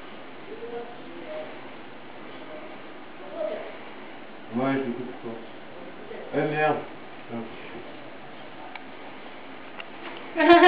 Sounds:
Speech

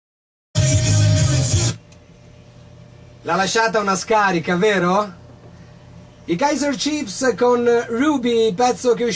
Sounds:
Speech, Radio, Music

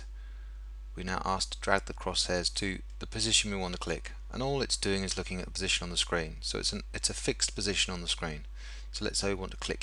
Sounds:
Speech

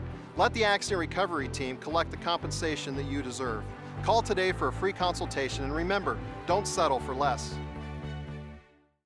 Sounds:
Music, Speech

